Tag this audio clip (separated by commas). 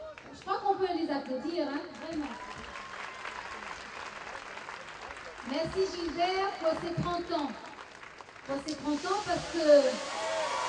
Speech